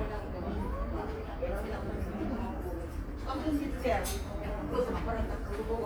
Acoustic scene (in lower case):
subway station